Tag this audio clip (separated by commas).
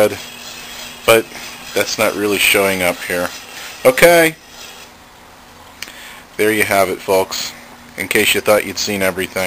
Speech